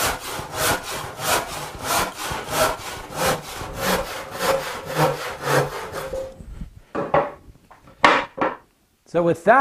A saw sawing wood and then a block of something is sat down on wood and a man talks